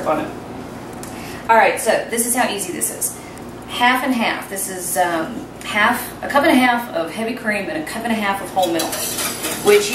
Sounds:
Stir

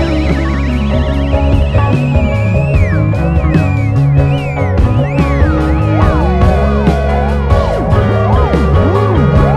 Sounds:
Psychedelic rock, Music

